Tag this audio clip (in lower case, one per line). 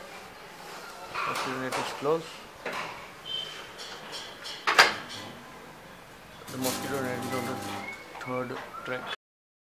speech